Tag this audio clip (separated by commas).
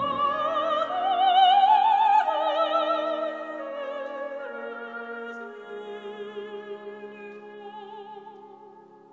Opera, Music